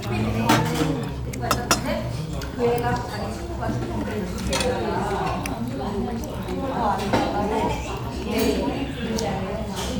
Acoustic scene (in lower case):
restaurant